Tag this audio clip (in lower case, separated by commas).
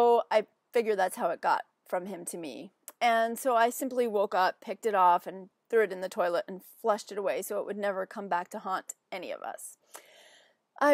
speech